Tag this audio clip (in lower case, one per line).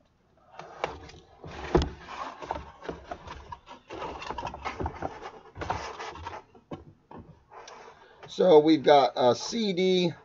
speech